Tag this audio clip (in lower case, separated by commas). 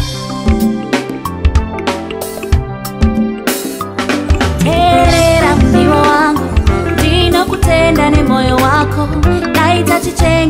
music